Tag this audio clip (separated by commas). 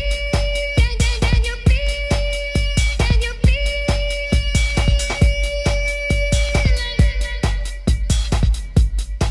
Electronic music, Techno, Music, House music